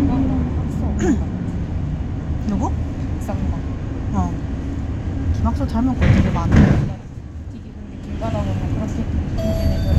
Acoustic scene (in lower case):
bus